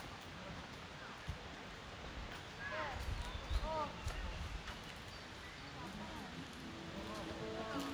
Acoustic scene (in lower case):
park